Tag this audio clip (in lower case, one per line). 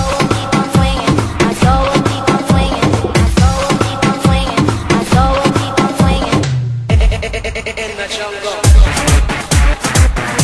music
hip hop music